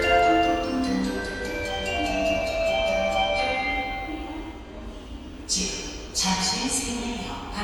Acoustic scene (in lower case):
subway station